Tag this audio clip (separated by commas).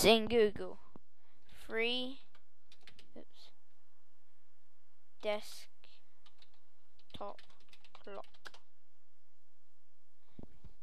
Speech